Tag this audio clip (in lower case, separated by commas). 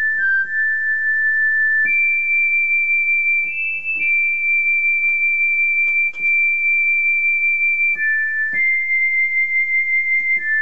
music